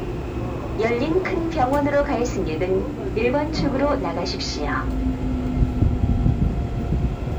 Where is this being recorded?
on a subway train